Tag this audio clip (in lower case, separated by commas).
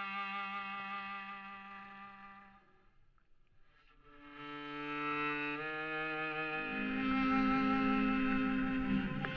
music